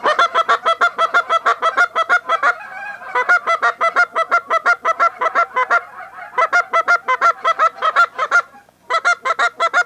A bunch of geese honking